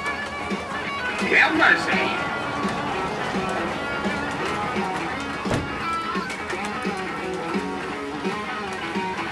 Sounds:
music
speech

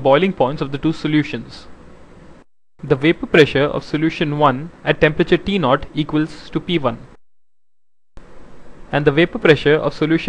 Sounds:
speech

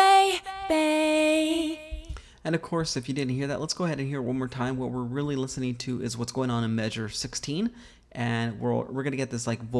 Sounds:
speech

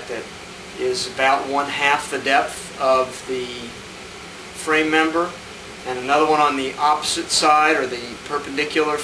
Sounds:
speech

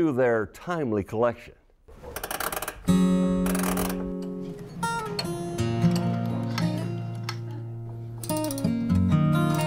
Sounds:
tick
music
tick-tock
speech

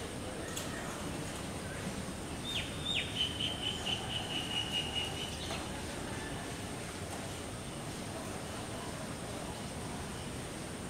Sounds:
woodpecker pecking tree

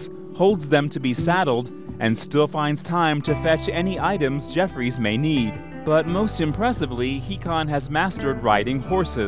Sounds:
speech
music

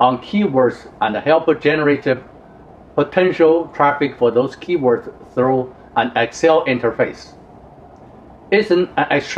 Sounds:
speech

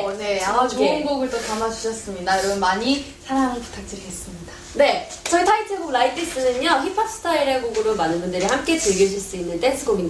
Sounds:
speech

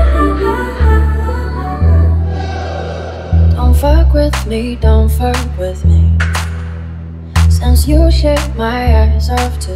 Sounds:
music

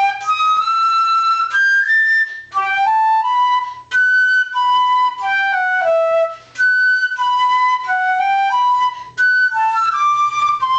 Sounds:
music

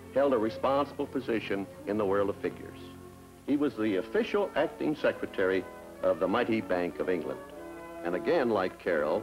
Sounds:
speech
music

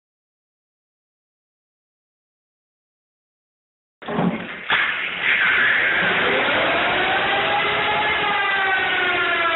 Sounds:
vehicle

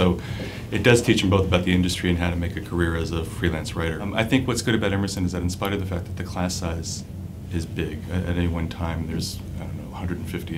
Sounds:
speech

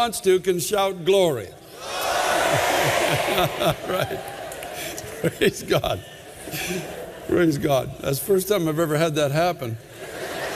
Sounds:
whoop
speech

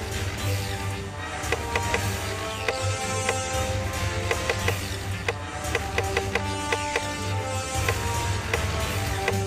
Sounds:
music

